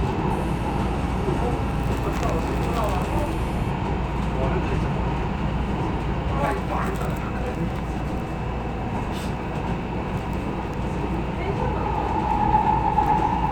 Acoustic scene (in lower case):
subway train